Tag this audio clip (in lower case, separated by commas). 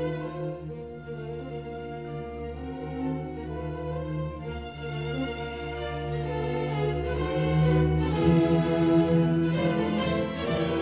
musical instrument, violin, music